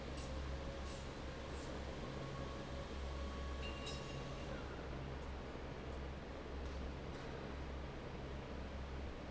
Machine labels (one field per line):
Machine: fan